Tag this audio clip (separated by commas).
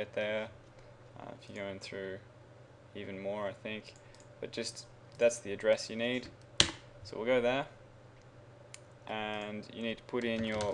Speech